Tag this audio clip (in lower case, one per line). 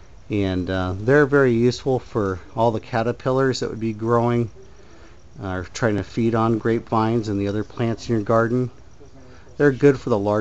speech